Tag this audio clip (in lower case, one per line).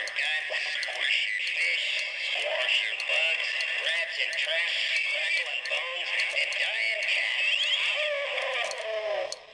speech